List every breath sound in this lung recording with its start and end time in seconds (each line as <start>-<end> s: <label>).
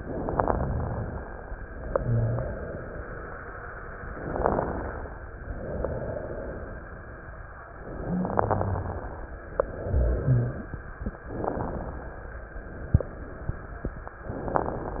1.68-3.43 s: exhalation
4.04-5.29 s: inhalation
4.04-5.29 s: crackles
5.32-7.45 s: exhalation
7.93-9.33 s: inhalation
7.93-9.33 s: crackles
8.06-9.01 s: rhonchi
9.51-10.99 s: exhalation
9.85-10.56 s: rhonchi
11.27-12.51 s: inhalation
11.27-12.51 s: crackles
12.55-14.06 s: exhalation